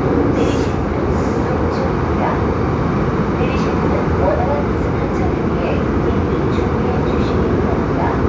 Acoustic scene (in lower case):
subway train